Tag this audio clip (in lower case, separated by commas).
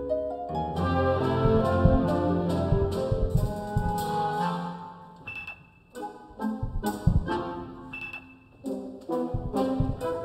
orchestra, musical instrument, music, classical music